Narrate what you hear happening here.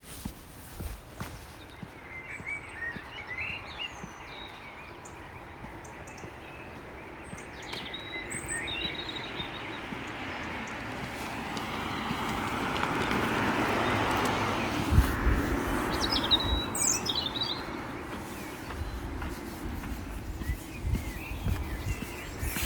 I was walking and recorded a bird singing, car passed by